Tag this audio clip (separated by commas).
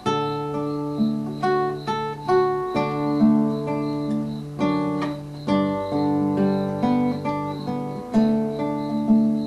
Music, Plucked string instrument, Strum, Guitar, Acoustic guitar, Musical instrument